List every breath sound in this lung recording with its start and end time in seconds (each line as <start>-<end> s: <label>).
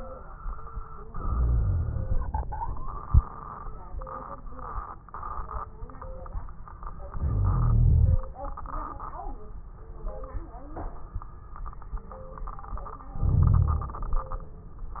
1.06-2.42 s: inhalation
1.06-2.42 s: wheeze
7.17-8.21 s: inhalation
7.17-8.21 s: wheeze
13.15-14.01 s: inhalation
13.15-14.01 s: wheeze